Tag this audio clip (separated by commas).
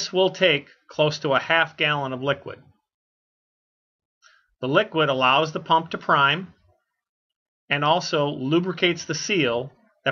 Speech